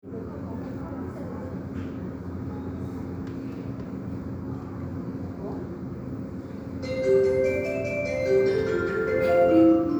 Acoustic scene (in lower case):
subway station